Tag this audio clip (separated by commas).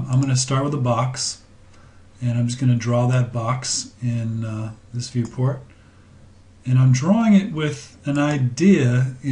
Speech